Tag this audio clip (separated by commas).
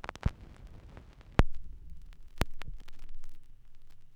Crackle